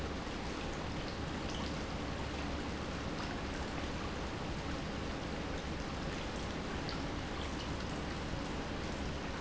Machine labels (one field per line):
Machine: pump